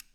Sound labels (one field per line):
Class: switch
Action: being turned off